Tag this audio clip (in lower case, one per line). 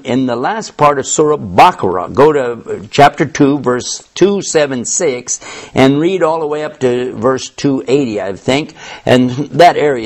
speech